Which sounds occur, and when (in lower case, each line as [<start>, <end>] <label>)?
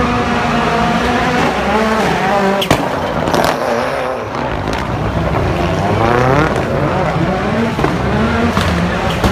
[0.00, 9.31] vroom
[0.00, 9.31] race car